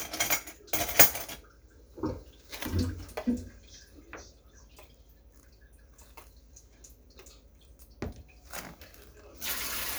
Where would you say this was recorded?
in a kitchen